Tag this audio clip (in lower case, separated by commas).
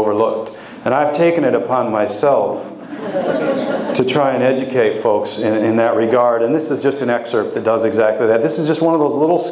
speech